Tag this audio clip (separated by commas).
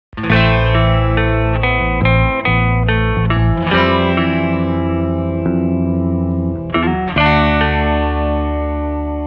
Music, Electronic music, Musical instrument